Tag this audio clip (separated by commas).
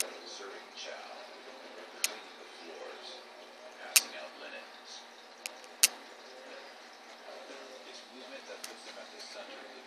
Speech